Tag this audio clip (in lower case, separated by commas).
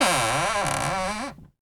door, cupboard open or close, domestic sounds